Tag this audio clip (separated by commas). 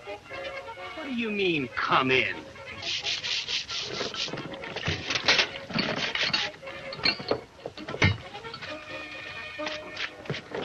Speech, Music